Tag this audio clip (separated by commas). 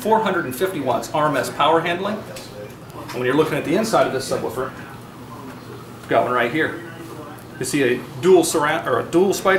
Speech